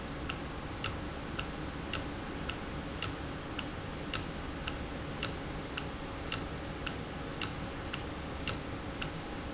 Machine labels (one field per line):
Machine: valve